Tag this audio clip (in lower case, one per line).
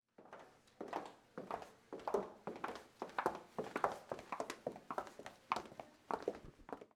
footsteps